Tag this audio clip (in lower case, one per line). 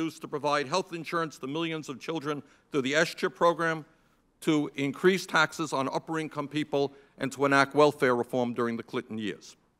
speech